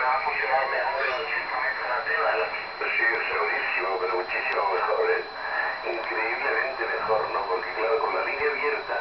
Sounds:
radio, speech

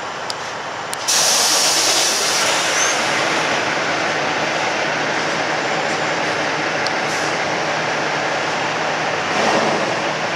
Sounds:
truck, vehicle

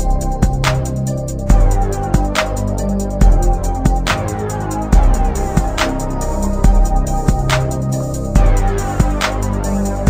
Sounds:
music

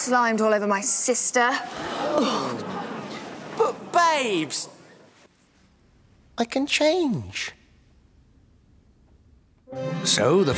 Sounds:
music, speech

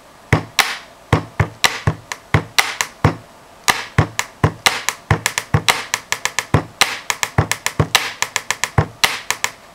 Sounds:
inside a small room

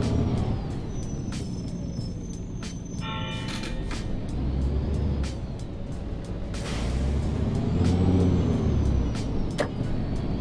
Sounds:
vehicle, music, bus

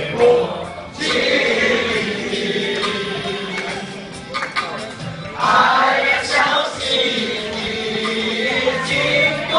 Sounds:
male singing, choir

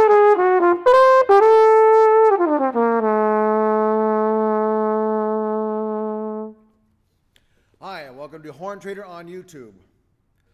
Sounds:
brass instrument, trumpet

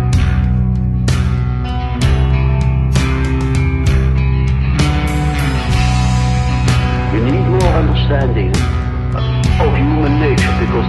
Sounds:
speech, music

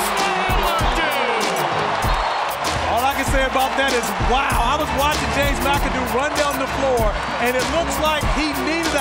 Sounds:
music, speech, shout

